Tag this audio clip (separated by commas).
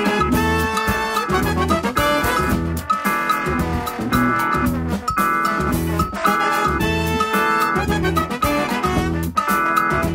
Musical instrument, Afrobeat, Music, Music of Africa